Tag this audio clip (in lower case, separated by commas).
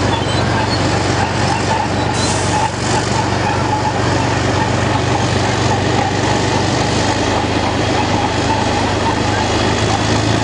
vehicle, truck